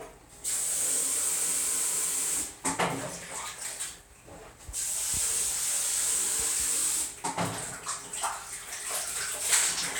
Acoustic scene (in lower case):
restroom